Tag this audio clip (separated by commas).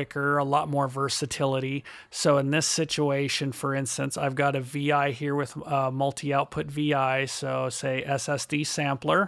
Speech